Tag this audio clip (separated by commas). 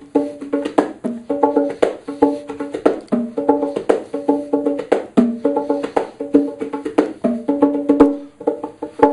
playing bongo